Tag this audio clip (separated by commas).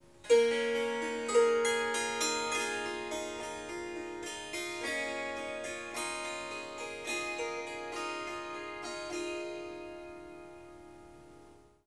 Musical instrument, Harp, Music